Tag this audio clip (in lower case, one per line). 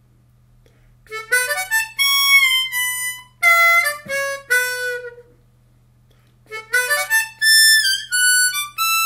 playing harmonica